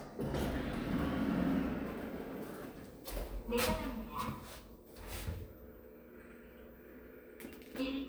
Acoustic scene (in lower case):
elevator